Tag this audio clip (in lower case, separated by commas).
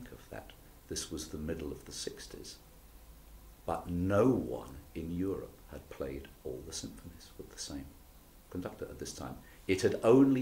speech